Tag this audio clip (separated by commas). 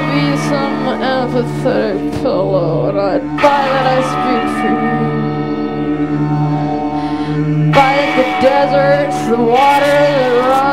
Music, Guitar, Musical instrument, Plucked string instrument, Heavy metal, inside a large room or hall